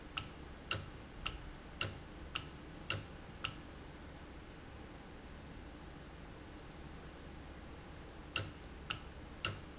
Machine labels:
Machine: valve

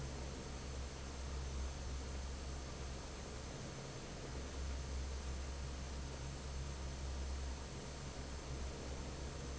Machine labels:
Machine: fan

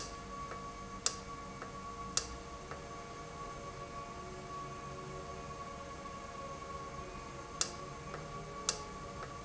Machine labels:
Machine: valve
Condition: normal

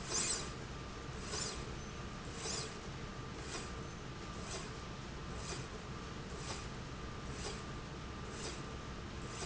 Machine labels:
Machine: slide rail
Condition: normal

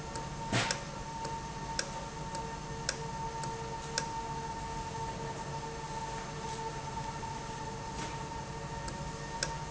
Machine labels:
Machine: valve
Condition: normal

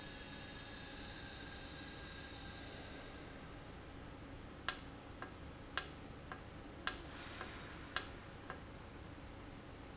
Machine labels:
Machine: valve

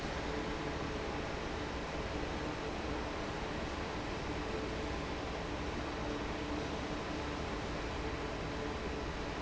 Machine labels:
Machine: fan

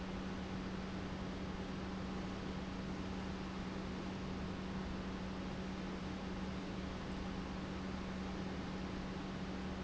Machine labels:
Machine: pump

